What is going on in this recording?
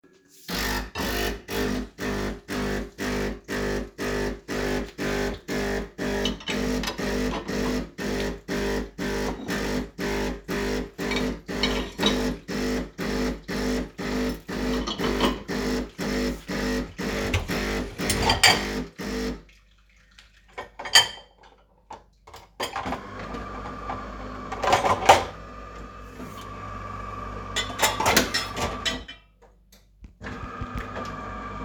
while the coffee machine was cleaning I unloaded the dishwasher